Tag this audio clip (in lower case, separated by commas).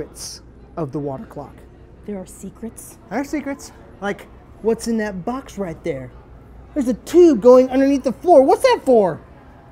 speech